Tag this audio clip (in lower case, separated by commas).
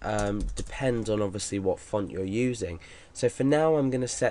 speech